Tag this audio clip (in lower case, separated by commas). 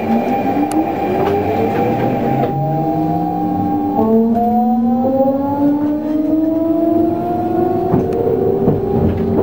vehicle, rail transport, train